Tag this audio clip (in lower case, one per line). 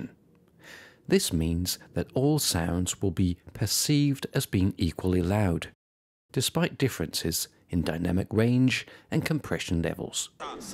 speech